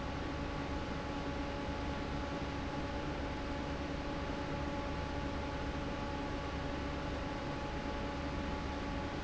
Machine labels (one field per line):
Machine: fan